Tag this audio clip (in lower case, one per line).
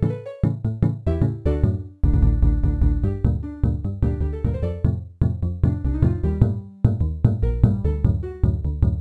funny music
music